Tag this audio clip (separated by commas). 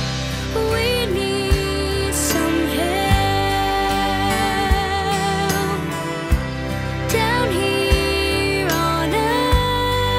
child singing